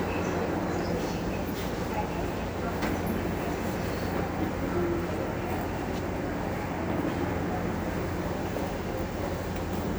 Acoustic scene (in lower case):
subway station